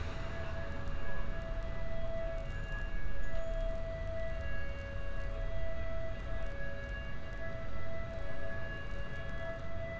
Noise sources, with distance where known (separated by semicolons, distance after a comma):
siren, near